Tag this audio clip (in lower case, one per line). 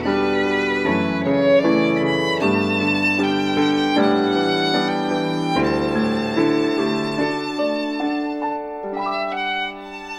music